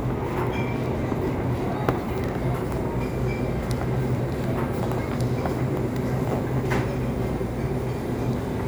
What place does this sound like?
crowded indoor space